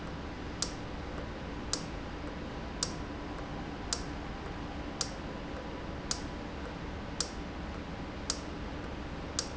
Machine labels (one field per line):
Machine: valve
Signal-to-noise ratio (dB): -6 dB